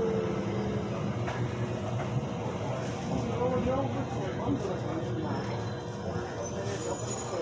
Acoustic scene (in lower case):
subway train